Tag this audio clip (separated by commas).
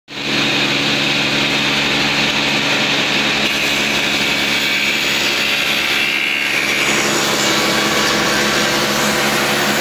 Power tool, Tools